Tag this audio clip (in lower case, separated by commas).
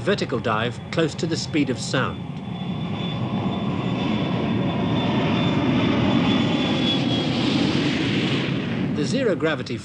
speech, aircraft